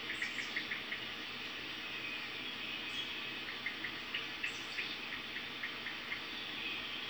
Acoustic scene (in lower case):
park